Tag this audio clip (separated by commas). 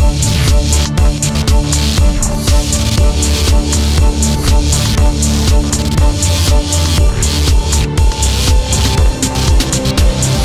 Music